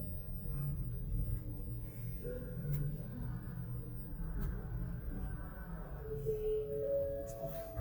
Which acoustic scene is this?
elevator